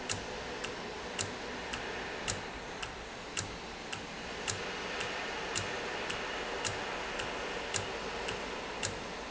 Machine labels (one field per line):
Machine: valve